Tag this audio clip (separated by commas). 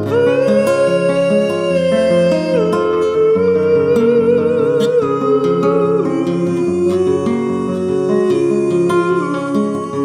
Music, Electric piano